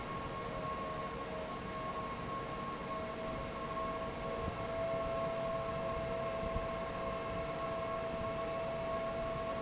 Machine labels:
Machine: fan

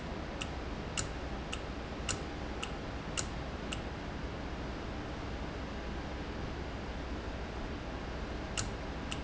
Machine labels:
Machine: valve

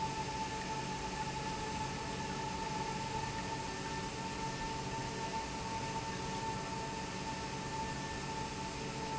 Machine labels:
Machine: pump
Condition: normal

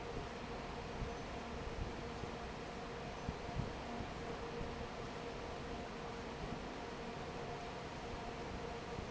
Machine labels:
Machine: fan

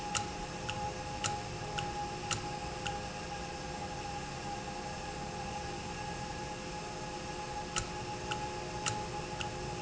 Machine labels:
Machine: valve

